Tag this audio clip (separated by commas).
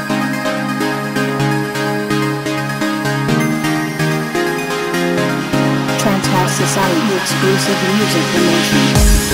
Speech, Music